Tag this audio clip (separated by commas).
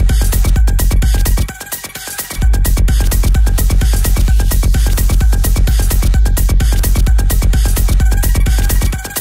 Techno, Music